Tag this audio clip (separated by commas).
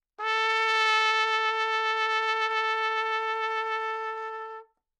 Musical instrument, Trumpet, Music, Brass instrument